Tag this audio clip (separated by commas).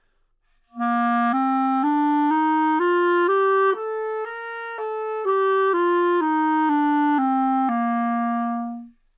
Musical instrument, Wind instrument, Music